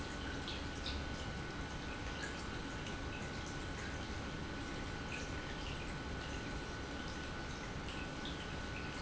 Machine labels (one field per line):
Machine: pump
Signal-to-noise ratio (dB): 0 dB